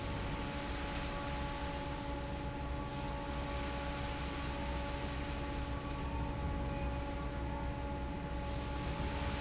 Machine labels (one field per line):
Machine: fan